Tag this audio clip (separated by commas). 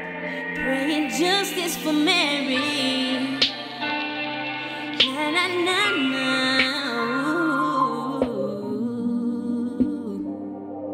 Music